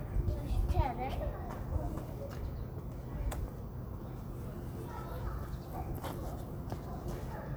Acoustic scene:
residential area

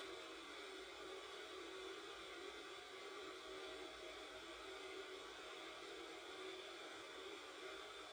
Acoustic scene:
subway train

